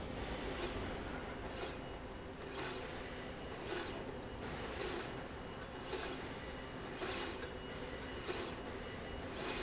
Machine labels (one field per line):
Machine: slide rail